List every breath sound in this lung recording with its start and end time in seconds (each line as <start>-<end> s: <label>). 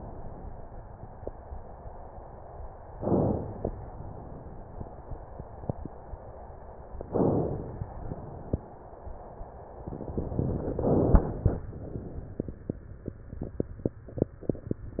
2.98-3.87 s: inhalation
7.12-8.01 s: inhalation
10.70-11.64 s: inhalation